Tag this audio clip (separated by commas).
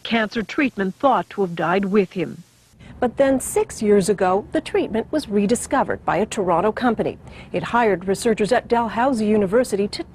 inside a small room, Speech